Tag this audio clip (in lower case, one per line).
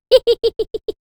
human voice
laughter
giggle